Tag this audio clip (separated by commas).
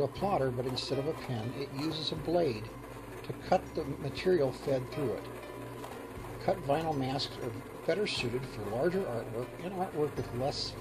Speech, Music